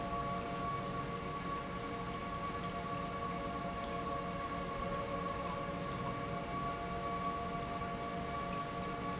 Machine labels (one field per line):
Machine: pump